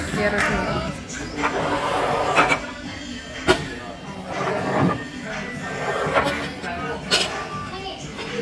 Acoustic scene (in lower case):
restaurant